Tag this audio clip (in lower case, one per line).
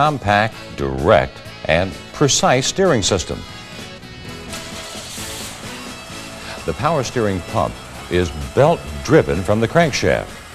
speech
music